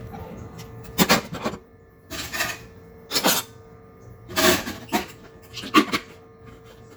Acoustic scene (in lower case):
kitchen